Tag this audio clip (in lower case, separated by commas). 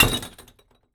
glass